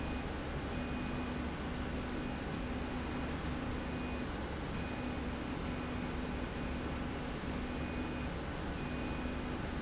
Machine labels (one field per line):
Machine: slide rail